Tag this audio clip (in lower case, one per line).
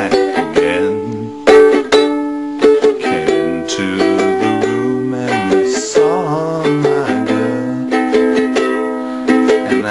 inside a small room
guitar
music
ukulele